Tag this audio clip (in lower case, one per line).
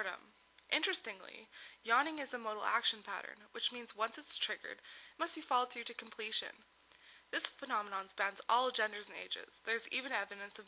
speech